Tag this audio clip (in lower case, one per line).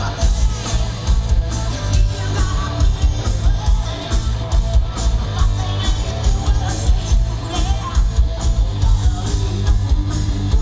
music